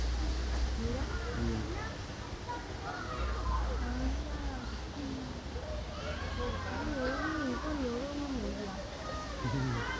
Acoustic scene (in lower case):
park